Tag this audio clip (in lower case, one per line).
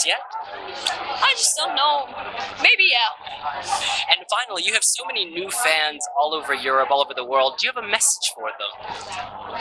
speech